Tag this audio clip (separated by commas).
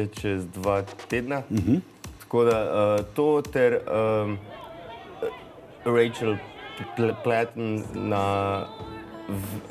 Music, Speech